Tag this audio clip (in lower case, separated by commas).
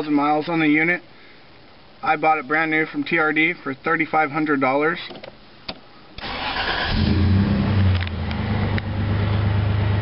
engine, vehicle, car, speech